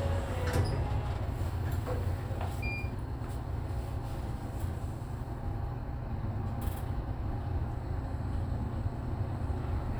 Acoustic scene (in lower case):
elevator